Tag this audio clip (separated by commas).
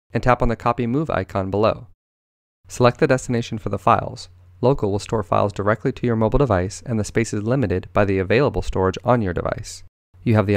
Speech